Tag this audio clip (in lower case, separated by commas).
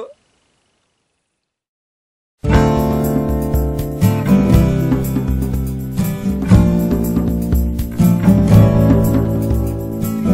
music